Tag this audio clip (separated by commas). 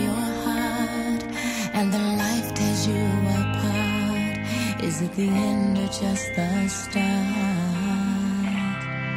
Music